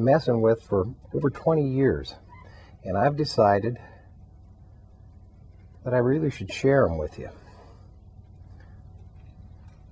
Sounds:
speech

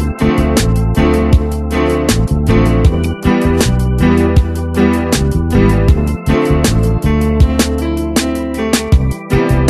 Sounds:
rhythm and blues, blues, music

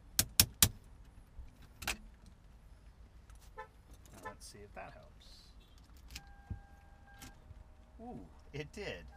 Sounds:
speech, vehicle

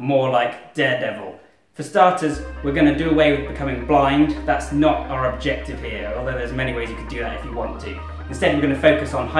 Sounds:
inside a small room, speech, music

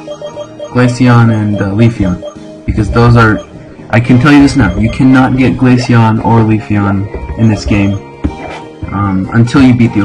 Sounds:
music, speech

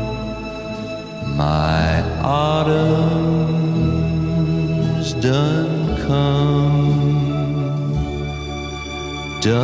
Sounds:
tender music, music

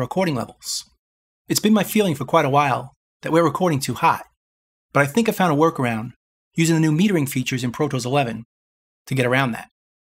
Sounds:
speech

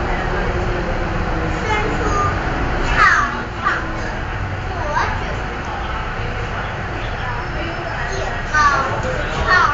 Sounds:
woman speaking, speech, child speech

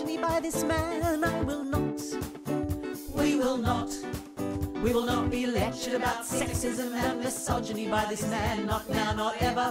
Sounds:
music

